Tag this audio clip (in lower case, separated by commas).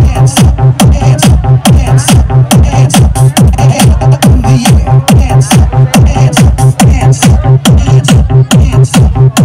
speech, sound effect, music